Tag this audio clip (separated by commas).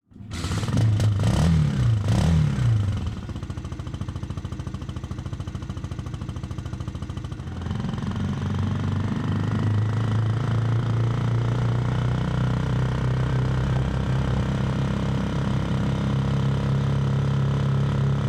Engine starting, Engine